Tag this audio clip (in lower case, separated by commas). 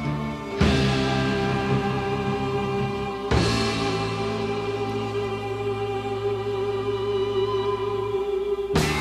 playing timpani